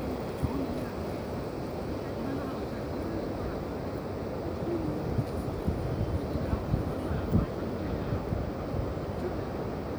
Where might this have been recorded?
in a park